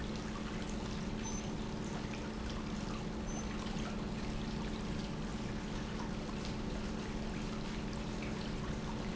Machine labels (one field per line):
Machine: pump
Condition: normal